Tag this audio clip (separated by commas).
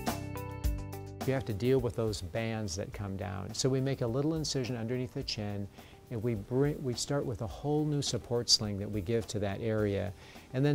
Speech, Music